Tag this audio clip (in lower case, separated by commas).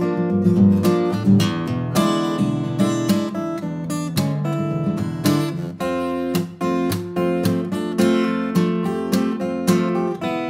acoustic guitar, music